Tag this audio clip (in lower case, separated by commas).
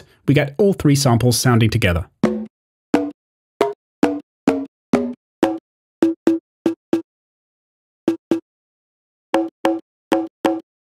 sampler, speech